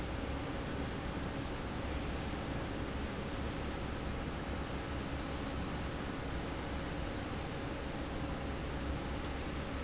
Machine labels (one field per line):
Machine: fan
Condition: normal